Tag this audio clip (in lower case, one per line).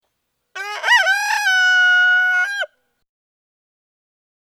livestock
chicken
animal
fowl